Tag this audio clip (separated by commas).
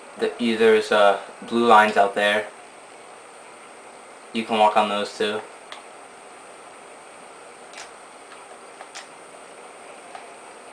Speech